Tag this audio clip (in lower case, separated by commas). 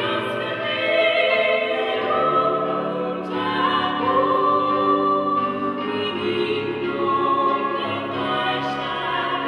choir, music, singing